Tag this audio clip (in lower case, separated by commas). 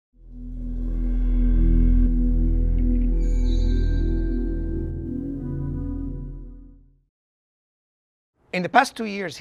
music, speech, ambient music